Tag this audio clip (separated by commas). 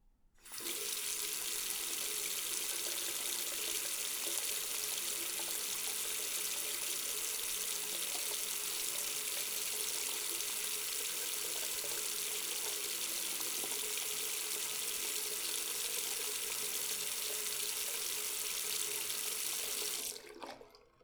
faucet, home sounds, Sink (filling or washing)